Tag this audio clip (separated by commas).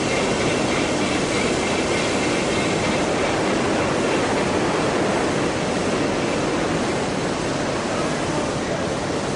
Pink noise